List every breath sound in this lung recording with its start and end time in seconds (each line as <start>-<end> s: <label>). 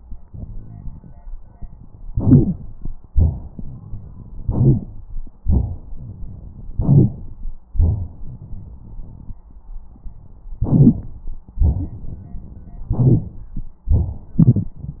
2.13-2.89 s: inhalation
2.14-2.56 s: wheeze
3.12-4.08 s: exhalation
4.44-5.07 s: inhalation
5.46-6.60 s: exhalation
6.75-7.51 s: inhalation
7.79-9.31 s: exhalation
10.66-11.40 s: inhalation
10.66-11.40 s: crackles
11.60-12.84 s: exhalation
12.94-13.68 s: inhalation